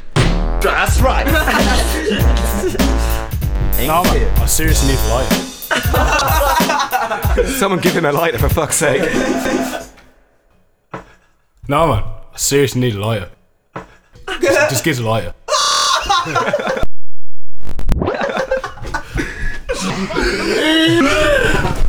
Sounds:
Singing, Human voice

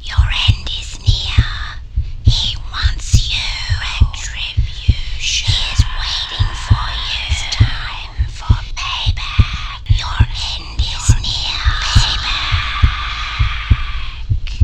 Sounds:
Human voice, Whispering

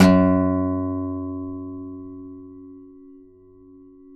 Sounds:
Acoustic guitar, Plucked string instrument, Guitar, Music, Musical instrument

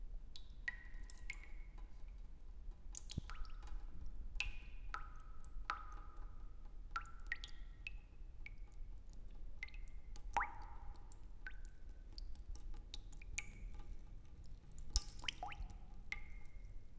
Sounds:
Drip, Liquid

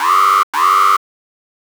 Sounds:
Alarm

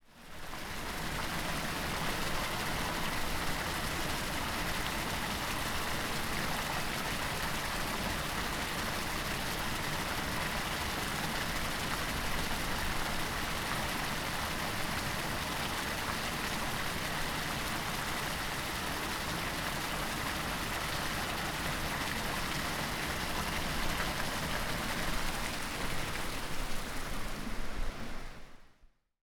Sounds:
Water

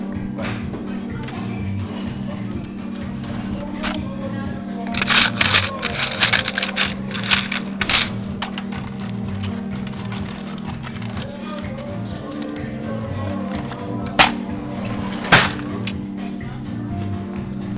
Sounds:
Coin (dropping), Domestic sounds

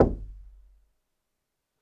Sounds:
Door, Knock, Domestic sounds

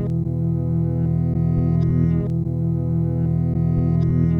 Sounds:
Plucked string instrument, Music, Musical instrument, Guitar

